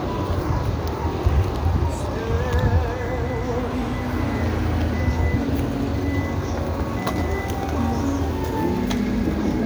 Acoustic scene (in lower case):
street